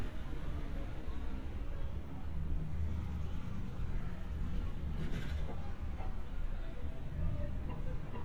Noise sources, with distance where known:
person or small group talking, far

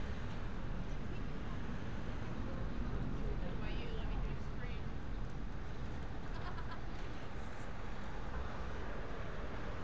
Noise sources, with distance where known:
person or small group talking, far

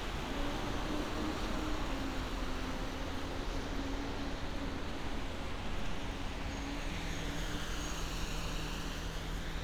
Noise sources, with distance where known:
medium-sounding engine

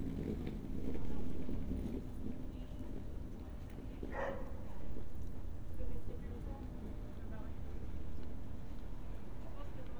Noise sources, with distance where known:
dog barking or whining

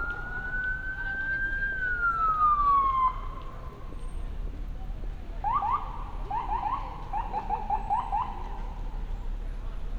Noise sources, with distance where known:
siren, near

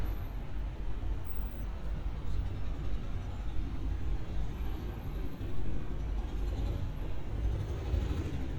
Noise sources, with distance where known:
medium-sounding engine

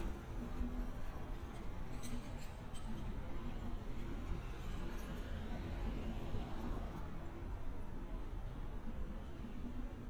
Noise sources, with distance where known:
background noise

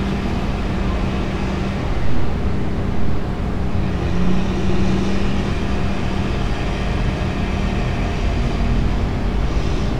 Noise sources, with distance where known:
engine of unclear size, near

